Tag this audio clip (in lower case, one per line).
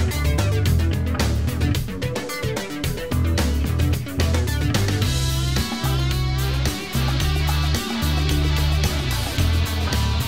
music